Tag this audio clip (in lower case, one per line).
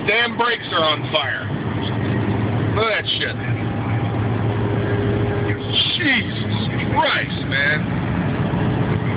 speech
vehicle
car